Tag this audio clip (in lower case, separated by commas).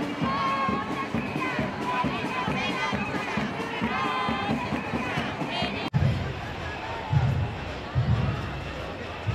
people marching